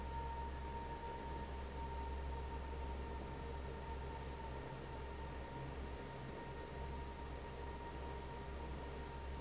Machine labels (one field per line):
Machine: fan